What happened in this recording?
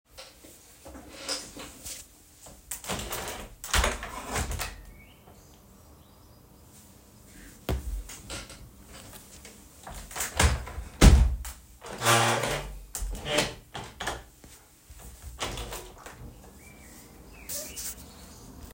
I opened the window then closed it and then opened it again